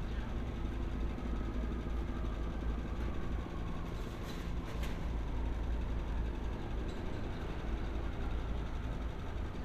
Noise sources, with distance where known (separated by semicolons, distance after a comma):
engine of unclear size, far